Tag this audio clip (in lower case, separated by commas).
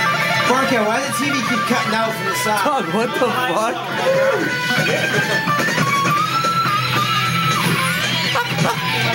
strum, speech, electric guitar, plucked string instrument, music, guitar, musical instrument